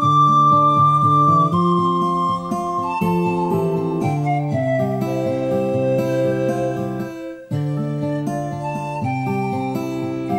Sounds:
playing flute, music, flute

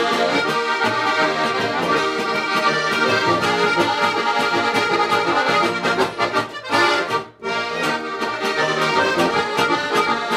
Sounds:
accordion, traditional music, music, musical instrument

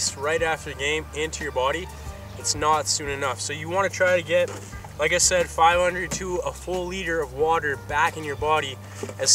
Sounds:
speech, music

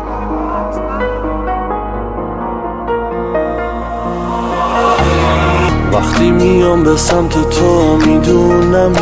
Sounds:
music, tender music

